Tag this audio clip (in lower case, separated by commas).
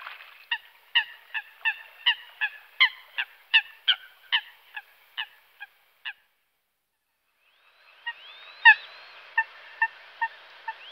bird